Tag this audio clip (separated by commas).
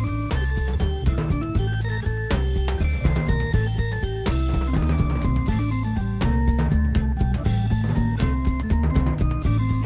Rock music, Music